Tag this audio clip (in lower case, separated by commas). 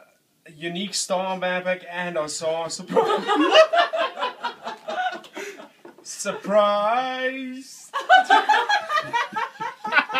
male speech, monologue, speech